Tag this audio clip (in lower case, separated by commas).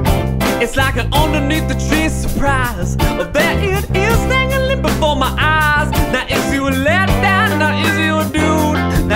music, rhythm and blues